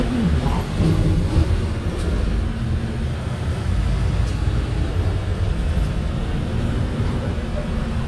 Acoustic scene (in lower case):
bus